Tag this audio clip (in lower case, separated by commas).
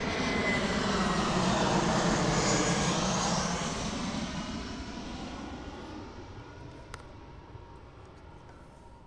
aircraft, airplane, vehicle